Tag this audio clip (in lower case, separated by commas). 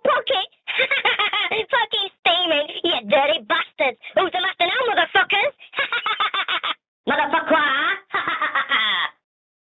speech